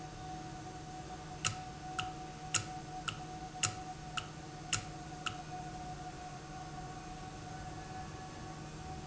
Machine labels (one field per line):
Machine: valve